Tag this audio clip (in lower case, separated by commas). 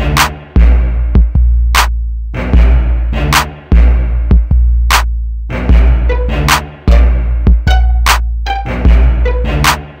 music